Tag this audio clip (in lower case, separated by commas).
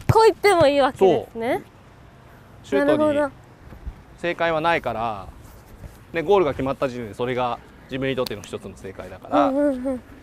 shot football